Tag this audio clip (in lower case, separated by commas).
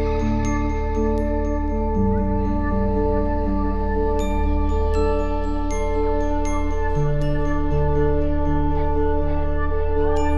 music